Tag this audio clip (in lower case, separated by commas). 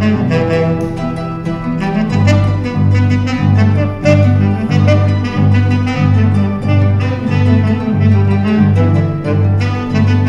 plucked string instrument, saxophone, musical instrument, harp, music